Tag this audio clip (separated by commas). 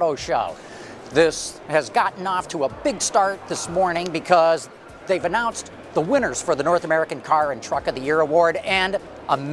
Music, Speech